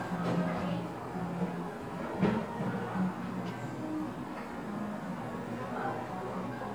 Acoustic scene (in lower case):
cafe